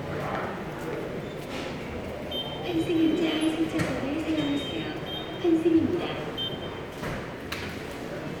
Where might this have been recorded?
in a subway station